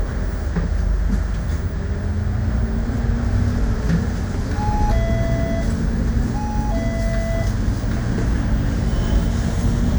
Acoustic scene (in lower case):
bus